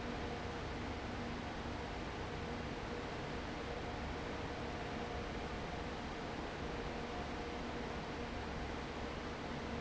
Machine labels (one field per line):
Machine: fan